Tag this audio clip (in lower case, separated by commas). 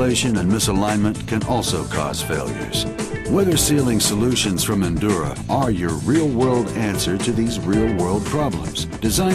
speech, music